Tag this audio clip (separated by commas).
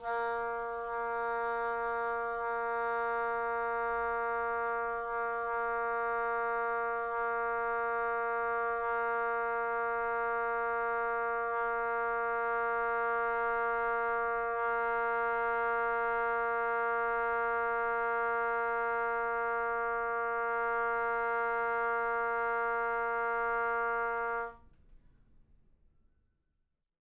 Musical instrument, woodwind instrument, Music